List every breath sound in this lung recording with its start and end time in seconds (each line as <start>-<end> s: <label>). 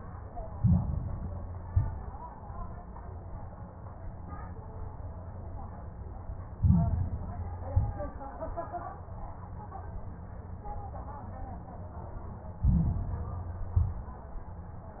0.49-1.48 s: inhalation
0.49-1.48 s: crackles
1.60-2.12 s: exhalation
1.60-2.12 s: crackles
6.54-7.52 s: inhalation
6.54-7.52 s: crackles
7.66-8.19 s: exhalation
7.66-8.19 s: crackles
12.60-13.59 s: inhalation
12.60-13.59 s: crackles
13.70-14.23 s: exhalation
13.70-14.23 s: crackles